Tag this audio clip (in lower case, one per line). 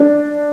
music
musical instrument
piano
keyboard (musical)